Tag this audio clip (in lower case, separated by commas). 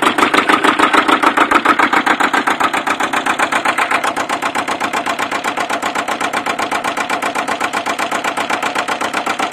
engine, idling, medium engine (mid frequency)